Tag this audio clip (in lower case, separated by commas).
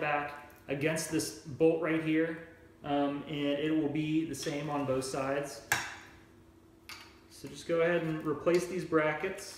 speech